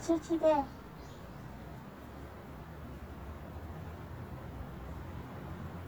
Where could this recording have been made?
in a residential area